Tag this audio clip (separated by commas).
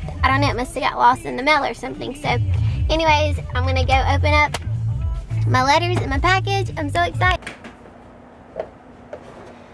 Music, Speech